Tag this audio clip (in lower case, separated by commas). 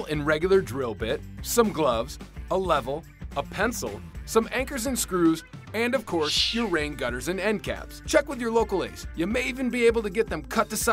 speech, music